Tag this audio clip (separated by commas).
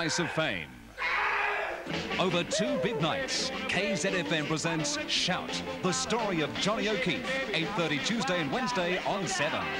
Speech, Music